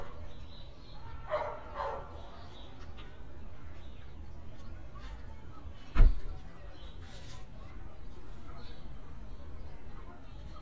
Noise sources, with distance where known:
dog barking or whining

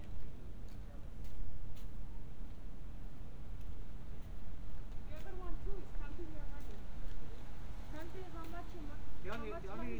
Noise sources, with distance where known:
person or small group talking, near

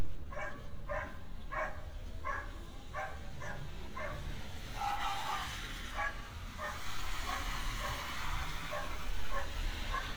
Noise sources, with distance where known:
engine of unclear size
dog barking or whining, far

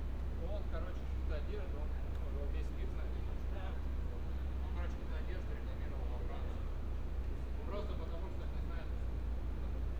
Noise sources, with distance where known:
person or small group talking, near

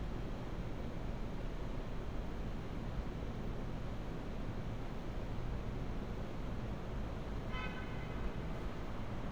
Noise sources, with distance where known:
car horn, far

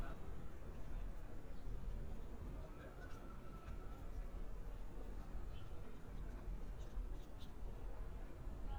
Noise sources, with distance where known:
person or small group talking, far

